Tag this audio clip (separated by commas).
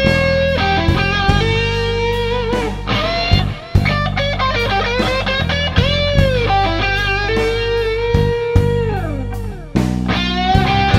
Strum, Music, Blues, Musical instrument, Electric guitar, Plucked string instrument, Guitar